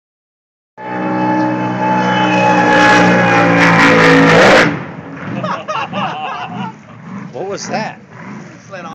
Loud boat engine passing and then laughing